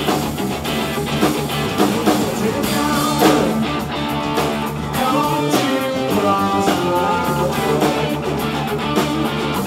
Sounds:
Electric guitar, Plucked string instrument, Music, Musical instrument, Guitar

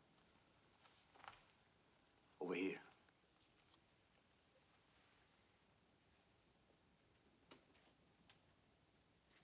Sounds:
inside a small room, Speech

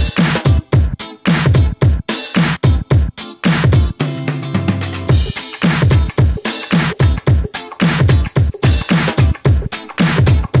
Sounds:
Music

